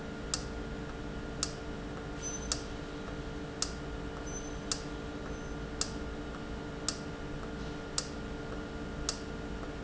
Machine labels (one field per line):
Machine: valve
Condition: normal